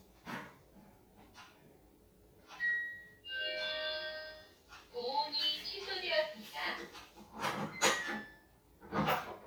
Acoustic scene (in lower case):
kitchen